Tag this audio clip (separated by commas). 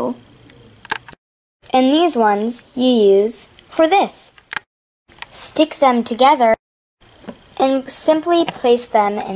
Speech